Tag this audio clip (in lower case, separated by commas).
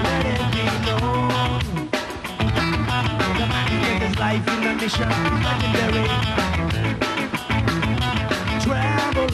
rhythm and blues, music